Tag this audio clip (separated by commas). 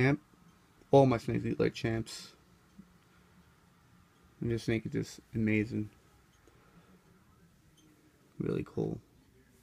Speech